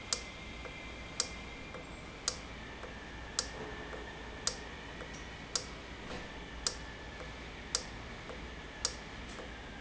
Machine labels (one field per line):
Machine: valve